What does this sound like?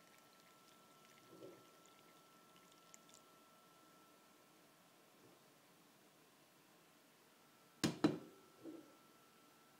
A soft pouring of liquid then a clunk of a pot